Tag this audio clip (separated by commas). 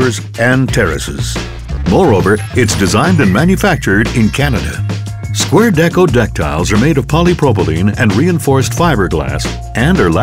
Music, Speech